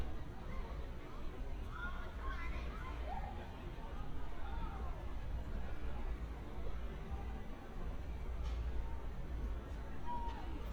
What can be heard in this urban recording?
person or small group talking